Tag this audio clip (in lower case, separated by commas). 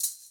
rattle (instrument), musical instrument, percussion, music